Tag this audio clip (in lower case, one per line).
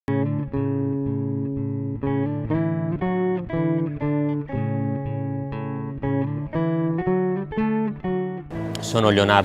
speech
music
bass guitar
plucked string instrument